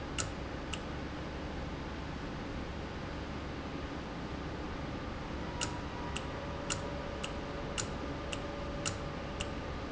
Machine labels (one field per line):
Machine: valve